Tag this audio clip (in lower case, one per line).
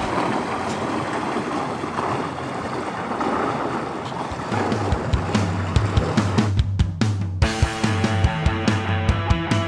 music
speedboat
vehicle